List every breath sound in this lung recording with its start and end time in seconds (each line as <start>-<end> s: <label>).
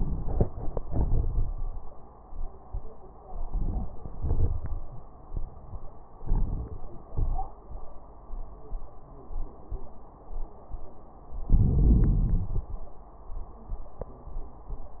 0.73-2.11 s: exhalation
0.73-2.11 s: crackles
3.25-4.13 s: crackles
3.30-4.18 s: inhalation
4.18-5.06 s: exhalation
4.18-5.06 s: crackles
6.17-7.04 s: inhalation
6.17-7.04 s: crackles
7.09-7.97 s: exhalation
7.09-7.97 s: crackles
11.45-13.06 s: inhalation
11.45-13.06 s: crackles